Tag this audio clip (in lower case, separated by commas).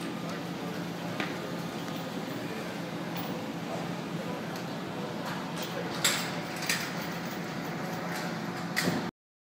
speech